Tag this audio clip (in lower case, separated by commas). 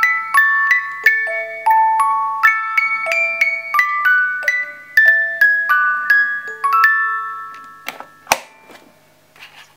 tender music, music